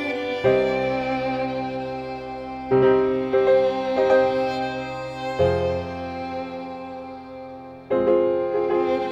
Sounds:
musical instrument, music

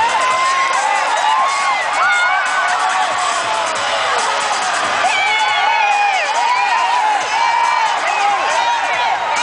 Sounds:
people cheering, cheering

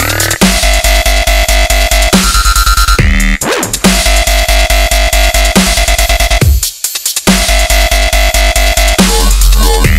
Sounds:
dubstep, music

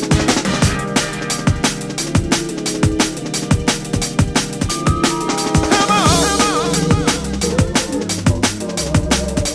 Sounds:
music

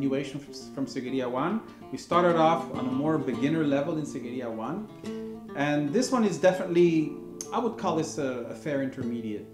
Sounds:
speech, guitar, music, plucked string instrument, musical instrument

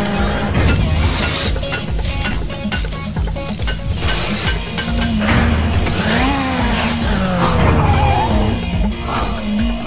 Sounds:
vehicle, music

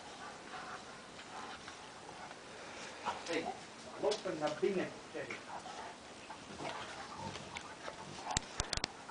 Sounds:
domestic animals, dog, speech, animal

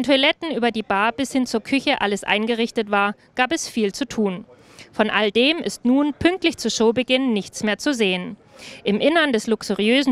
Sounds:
speech

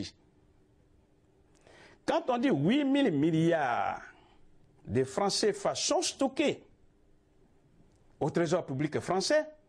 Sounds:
speech

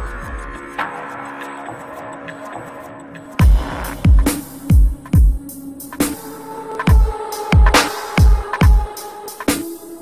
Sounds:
music, dubstep

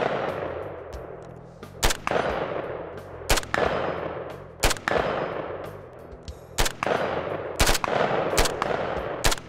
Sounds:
machine gun shooting

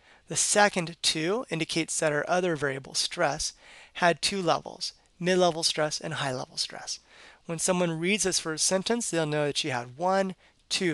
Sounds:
speech

